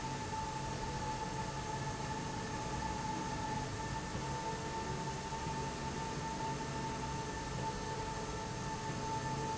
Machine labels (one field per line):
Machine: slide rail